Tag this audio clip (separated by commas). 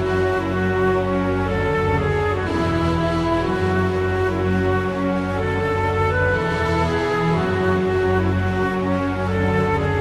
Music